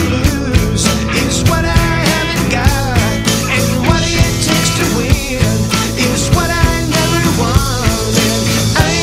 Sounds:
rhythm and blues
music

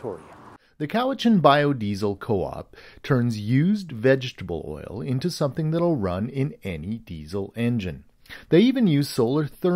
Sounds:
speech

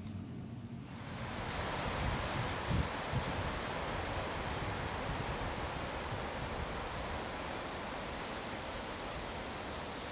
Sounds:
rustling leaves

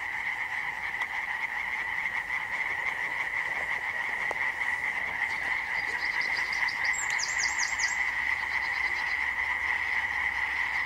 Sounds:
frog croaking

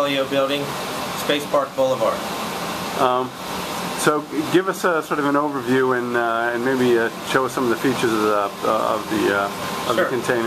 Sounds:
speech

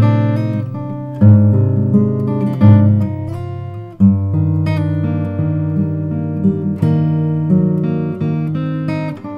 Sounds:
music
musical instrument
acoustic guitar
strum
plucked string instrument
guitar

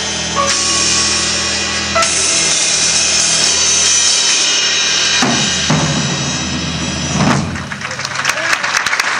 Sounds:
music
applause

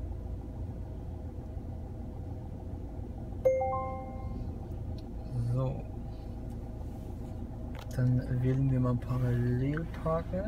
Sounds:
speech

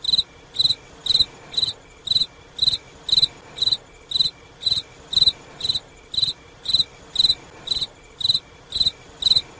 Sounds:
cricket chirping

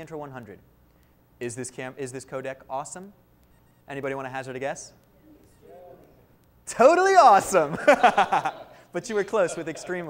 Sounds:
speech

